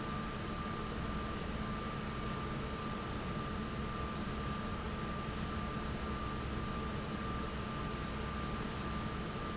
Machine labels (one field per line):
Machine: fan